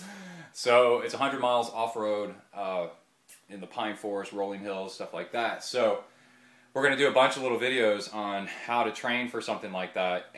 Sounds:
inside a small room, Speech

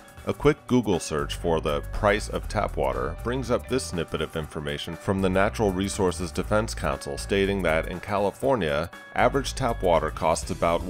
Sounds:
Music, Speech

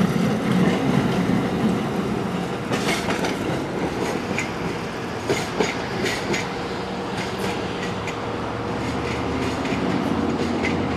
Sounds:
Clickety-clack, Train, Railroad car, Rail transport

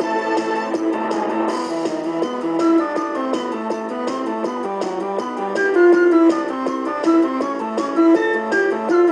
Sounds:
Music, Flute

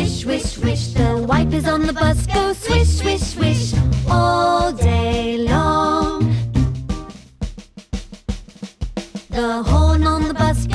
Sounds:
Music

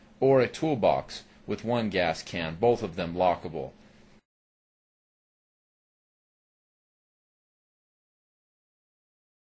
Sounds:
Speech

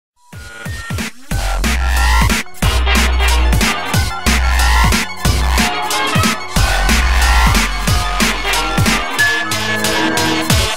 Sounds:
Music, Electronic music

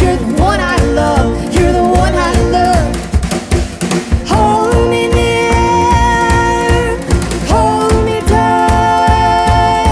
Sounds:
Music, Musical instrument

